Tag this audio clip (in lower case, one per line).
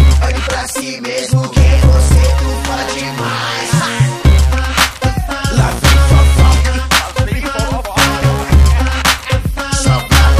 music